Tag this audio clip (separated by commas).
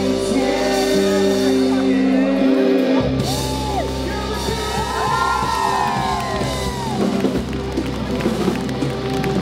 Music, Female singing, Speech